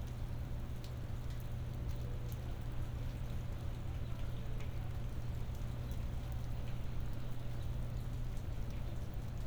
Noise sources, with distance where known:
person or small group talking, far

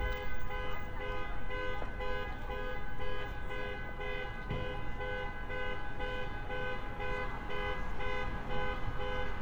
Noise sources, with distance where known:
car alarm, near; person or small group talking, far

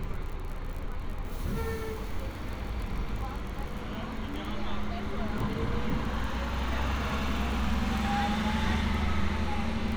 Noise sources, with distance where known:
large-sounding engine, near

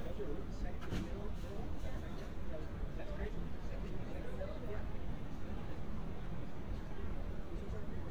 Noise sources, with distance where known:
person or small group talking, near

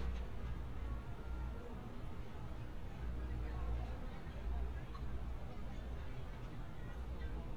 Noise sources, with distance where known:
background noise

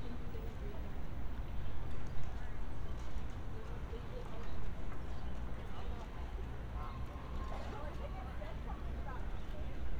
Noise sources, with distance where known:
person or small group talking, far

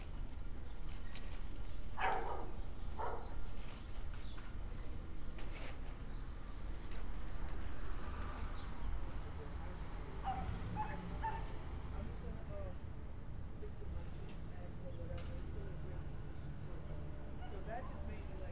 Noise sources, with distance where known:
dog barking or whining

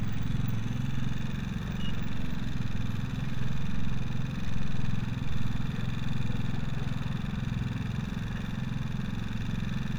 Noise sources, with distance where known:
unidentified impact machinery

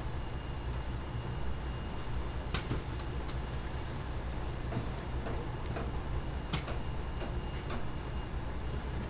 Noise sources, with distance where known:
unidentified impact machinery

